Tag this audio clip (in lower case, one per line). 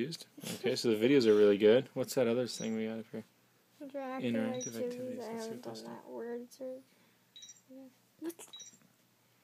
inside a small room
speech